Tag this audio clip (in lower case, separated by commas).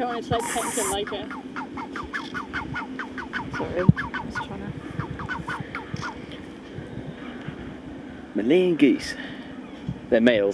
goose, fowl